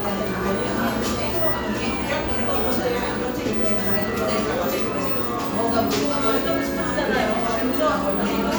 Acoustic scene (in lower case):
cafe